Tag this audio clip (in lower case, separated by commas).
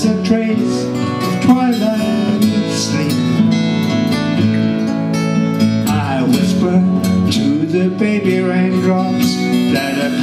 music, singing, bluegrass